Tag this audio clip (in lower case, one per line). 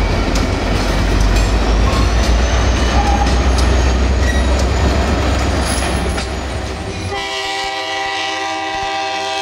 train horning
train wagon
rail transport
train horn
clickety-clack
train